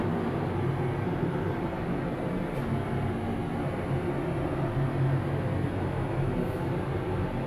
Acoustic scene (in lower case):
elevator